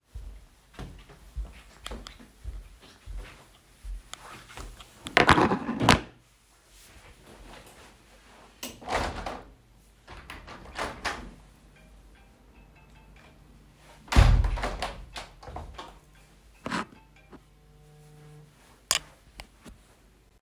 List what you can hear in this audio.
footsteps, window, phone ringing